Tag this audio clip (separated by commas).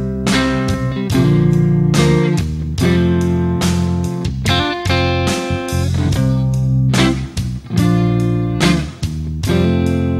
Music